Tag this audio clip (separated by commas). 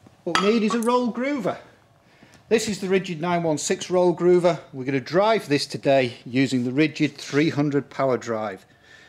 Speech